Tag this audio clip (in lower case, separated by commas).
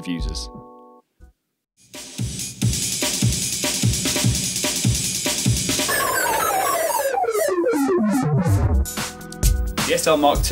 music, speech